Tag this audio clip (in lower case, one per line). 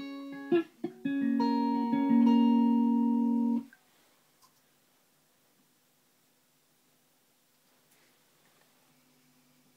musical instrument
music
guitar
plucked string instrument